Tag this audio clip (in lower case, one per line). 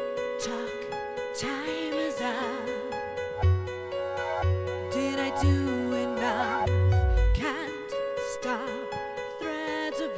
music